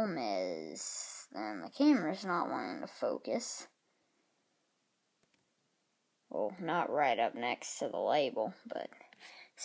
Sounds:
speech

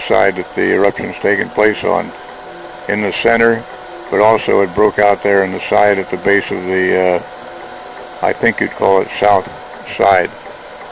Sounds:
speech

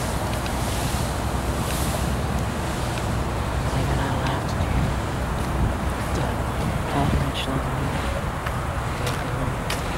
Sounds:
vehicle, truck, speech

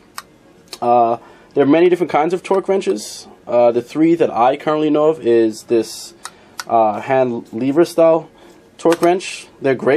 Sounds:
speech

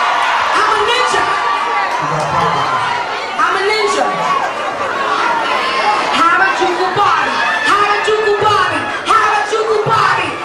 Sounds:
speech, inside a public space

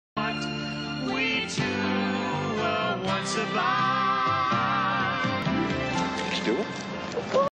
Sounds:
speech, television, music

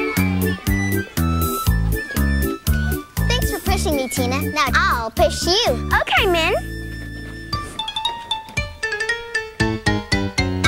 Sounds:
music, speech

